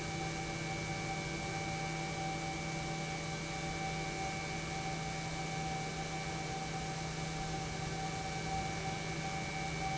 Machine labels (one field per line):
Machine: pump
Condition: normal